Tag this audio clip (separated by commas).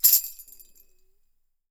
Musical instrument, Music, Tambourine, Percussion